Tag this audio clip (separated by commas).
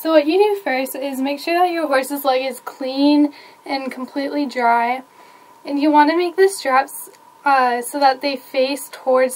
Speech